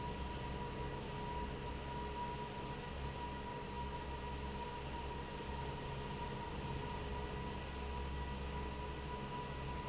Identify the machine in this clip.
fan